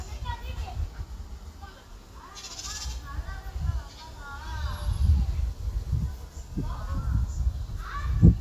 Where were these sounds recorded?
in a park